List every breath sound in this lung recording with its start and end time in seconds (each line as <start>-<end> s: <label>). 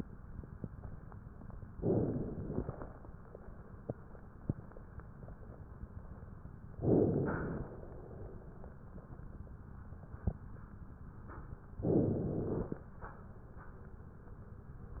1.78-2.90 s: inhalation
6.75-7.88 s: inhalation
11.86-12.85 s: inhalation